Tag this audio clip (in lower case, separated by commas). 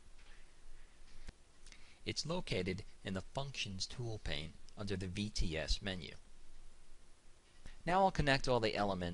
speech